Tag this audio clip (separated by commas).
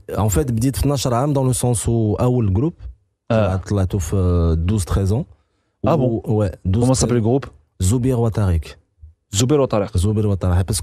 Speech